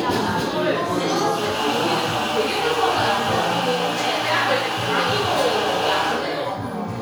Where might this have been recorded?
in a cafe